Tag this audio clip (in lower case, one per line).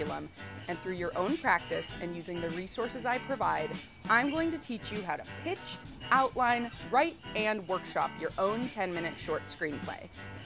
speech
music